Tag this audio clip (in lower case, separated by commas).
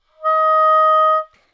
musical instrument, wind instrument, music